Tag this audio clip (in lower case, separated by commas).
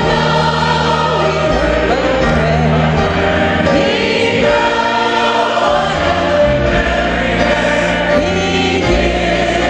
choir, female singing, male singing, music